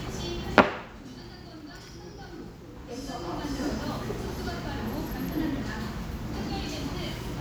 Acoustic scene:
restaurant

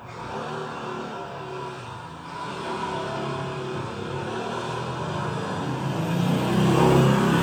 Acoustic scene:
residential area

